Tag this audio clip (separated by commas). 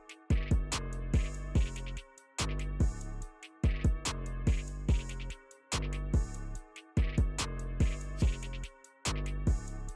cutting hair with electric trimmers